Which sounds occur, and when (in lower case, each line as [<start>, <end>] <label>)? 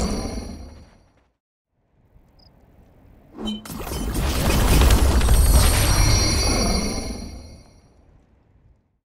[0.00, 1.28] sound effect
[1.69, 8.99] background noise
[2.37, 2.48] cricket
[3.35, 8.14] sound effect
[3.57, 4.53] water